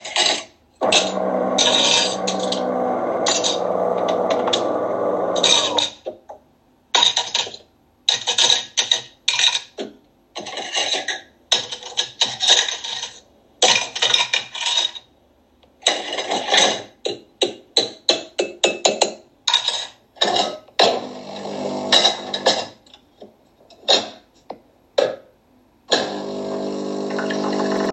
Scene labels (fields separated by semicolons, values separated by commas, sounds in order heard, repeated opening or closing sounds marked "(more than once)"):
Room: kitchen; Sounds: cutlery and dishes, coffee machine